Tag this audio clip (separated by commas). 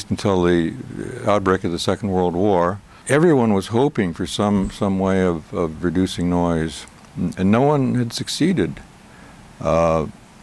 Speech